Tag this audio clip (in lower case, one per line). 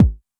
drum
bass drum
musical instrument
percussion
music